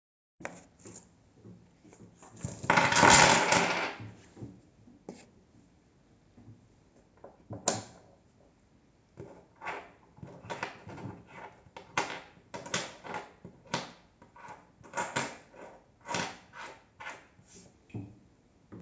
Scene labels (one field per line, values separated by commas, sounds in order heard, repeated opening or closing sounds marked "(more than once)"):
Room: office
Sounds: light switch